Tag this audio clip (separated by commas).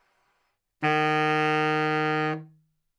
Music, woodwind instrument, Musical instrument